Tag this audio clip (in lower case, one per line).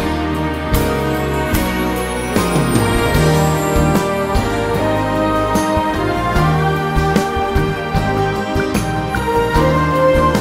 background music